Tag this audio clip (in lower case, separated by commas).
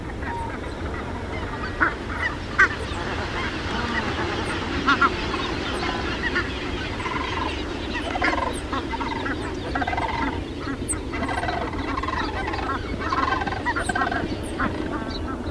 animal, fowl, livestock